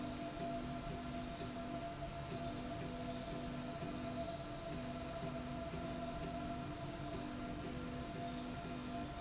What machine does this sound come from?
slide rail